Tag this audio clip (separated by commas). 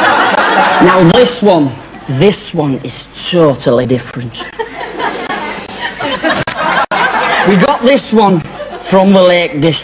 Speech